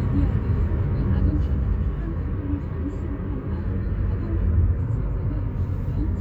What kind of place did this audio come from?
car